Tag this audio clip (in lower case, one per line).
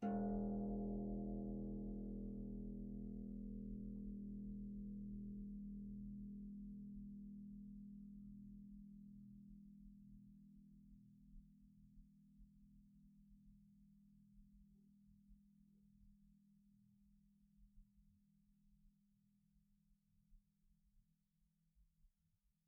harp
music
musical instrument